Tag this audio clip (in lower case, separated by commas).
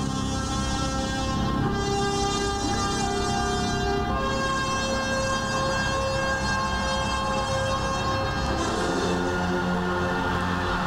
music